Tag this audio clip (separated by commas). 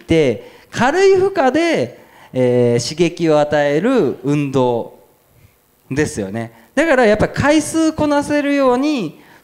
inside a large room or hall, Speech